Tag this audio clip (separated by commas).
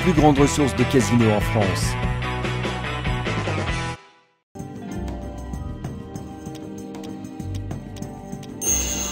slot machine